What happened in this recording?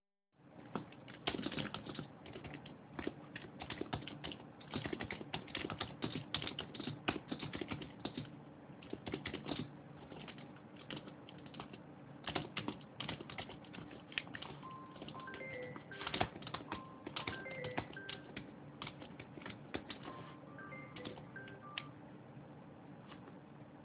I type on the keyboard until I'm interrupted by a phone ringing.